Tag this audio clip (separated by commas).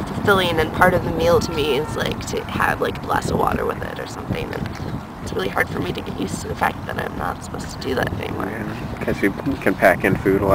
Speech